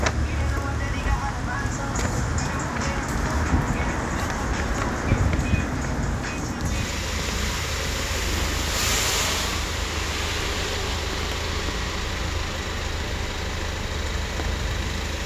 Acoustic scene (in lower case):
street